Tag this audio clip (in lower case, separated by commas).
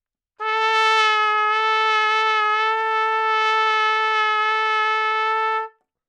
music, brass instrument, musical instrument, trumpet